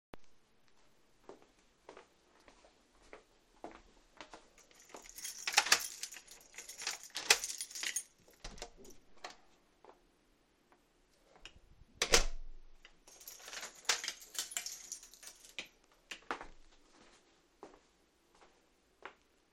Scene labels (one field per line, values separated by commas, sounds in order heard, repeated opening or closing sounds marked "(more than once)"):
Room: kitchen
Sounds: footsteps, door (more than once), keys